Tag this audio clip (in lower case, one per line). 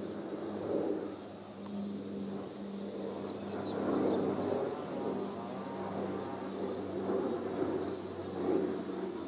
airplane
aircraft
vehicle